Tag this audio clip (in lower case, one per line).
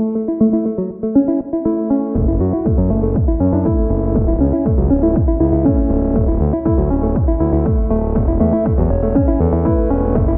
music